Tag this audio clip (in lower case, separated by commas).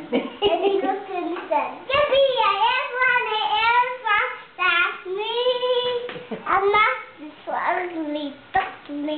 male singing, child singing, speech